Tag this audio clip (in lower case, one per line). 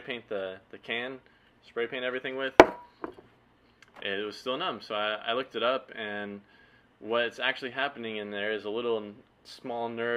speech